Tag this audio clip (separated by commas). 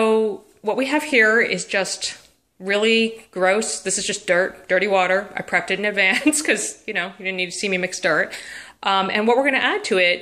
Speech